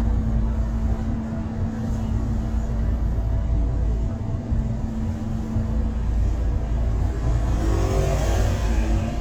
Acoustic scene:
bus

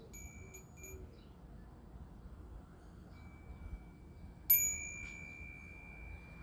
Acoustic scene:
residential area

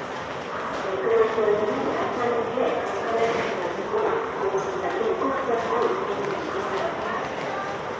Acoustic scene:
subway station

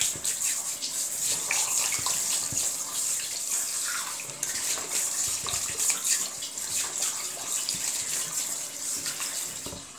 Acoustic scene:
restroom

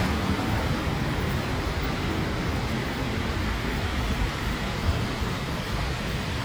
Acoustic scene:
street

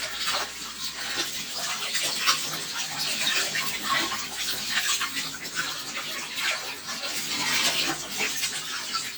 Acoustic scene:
kitchen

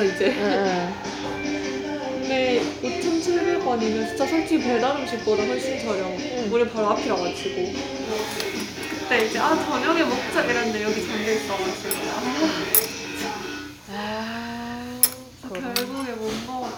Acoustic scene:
restaurant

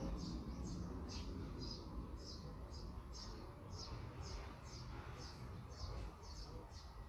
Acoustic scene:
park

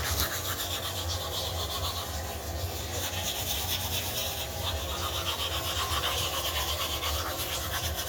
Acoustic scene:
restroom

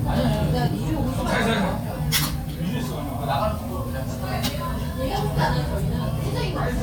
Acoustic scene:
crowded indoor space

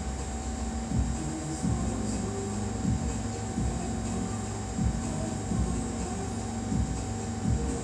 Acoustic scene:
cafe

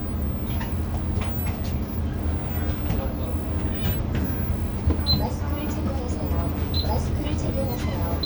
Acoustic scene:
bus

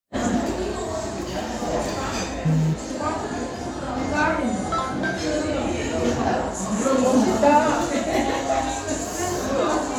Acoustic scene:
crowded indoor space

